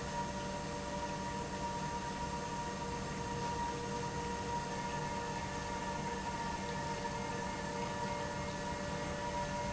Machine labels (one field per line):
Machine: pump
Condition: normal